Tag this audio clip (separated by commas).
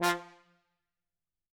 Musical instrument, Brass instrument, Music